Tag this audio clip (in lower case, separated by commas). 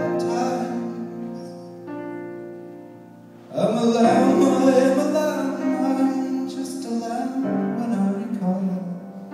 singing, music